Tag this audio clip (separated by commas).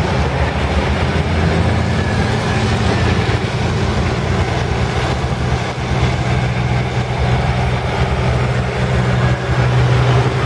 Vehicle, Truck